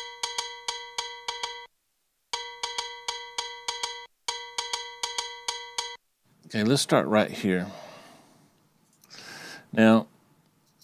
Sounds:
Glockenspiel

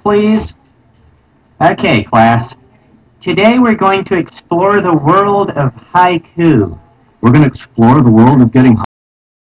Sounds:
Speech

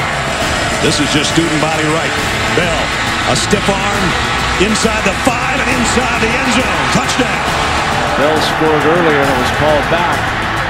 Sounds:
Music, Speech

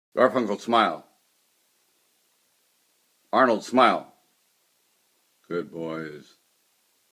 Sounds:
Speech

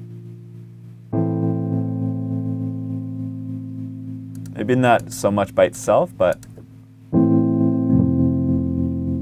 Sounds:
Music, Musical instrument

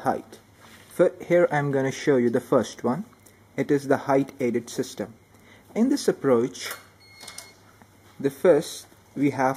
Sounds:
Speech

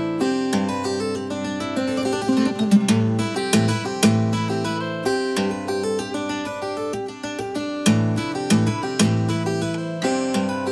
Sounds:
Acoustic guitar, Guitar, Plucked string instrument, Music, Musical instrument

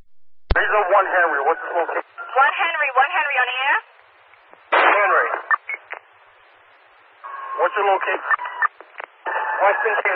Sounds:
police radio chatter

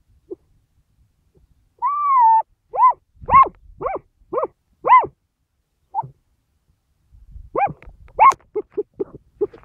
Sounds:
coyote howling

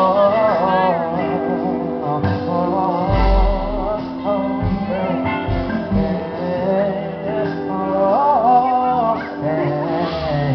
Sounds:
Music, Singing

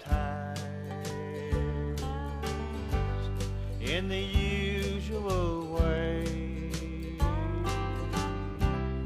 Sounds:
Music

